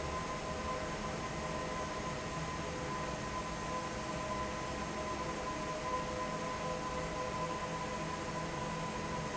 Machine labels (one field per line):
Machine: fan